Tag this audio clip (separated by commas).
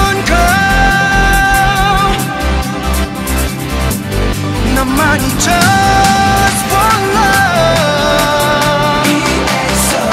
Electronic music, Dubstep, Music